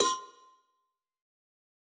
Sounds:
cowbell, bell

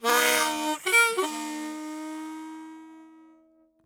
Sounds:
musical instrument, harmonica, music

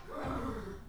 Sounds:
livestock, animal

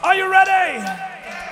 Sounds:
human voice, shout

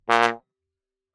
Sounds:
brass instrument, musical instrument, music

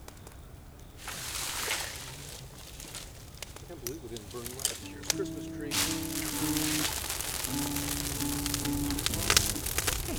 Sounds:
fire, crackle

